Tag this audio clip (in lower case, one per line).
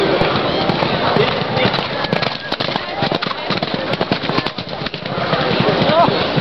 animal
livestock